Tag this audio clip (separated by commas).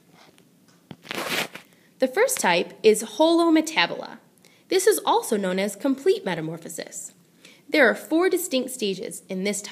Speech